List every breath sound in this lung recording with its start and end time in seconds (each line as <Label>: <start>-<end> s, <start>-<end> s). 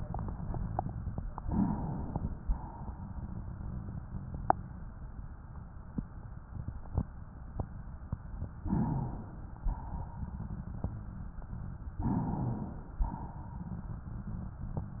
Inhalation: 1.31-2.53 s, 8.57-9.61 s, 11.97-13.03 s
Exhalation: 2.54-4.03 s, 9.63-10.63 s, 13.03-14.07 s